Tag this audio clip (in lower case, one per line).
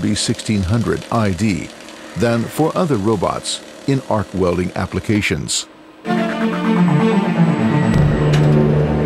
arc welding